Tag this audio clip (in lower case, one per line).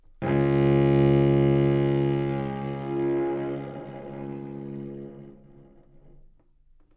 music
musical instrument
bowed string instrument